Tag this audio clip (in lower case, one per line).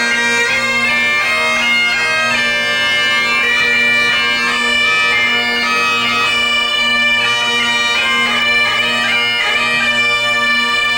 music
bagpipes